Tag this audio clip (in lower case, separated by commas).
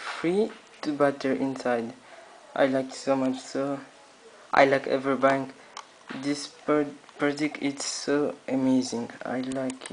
speech